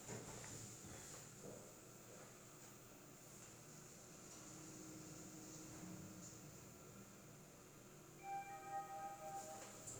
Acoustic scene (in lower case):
elevator